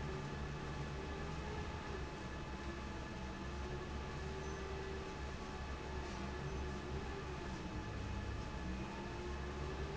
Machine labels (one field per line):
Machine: fan